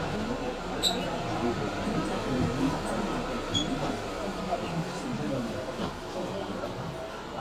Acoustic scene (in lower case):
subway train